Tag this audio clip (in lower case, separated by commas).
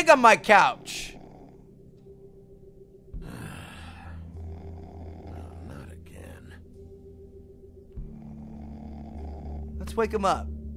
speech, inside a small room